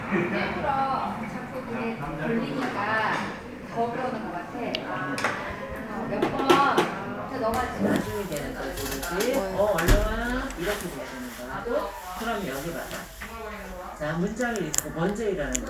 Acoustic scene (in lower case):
crowded indoor space